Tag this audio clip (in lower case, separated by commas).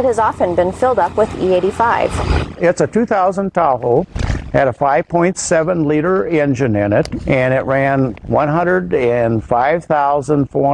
speech